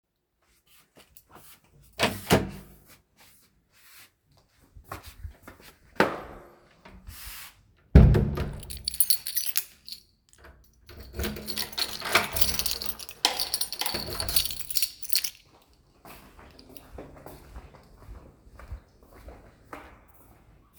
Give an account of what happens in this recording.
I opened the door, I steped outside, I used keys and closed it, I walked away